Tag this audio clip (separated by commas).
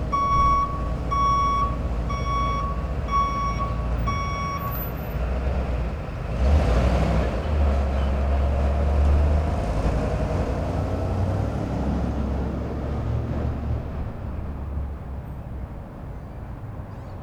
Truck, Alarm, Motor vehicle (road), Vehicle